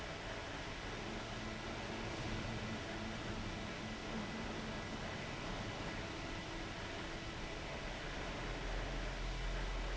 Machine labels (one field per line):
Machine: fan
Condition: abnormal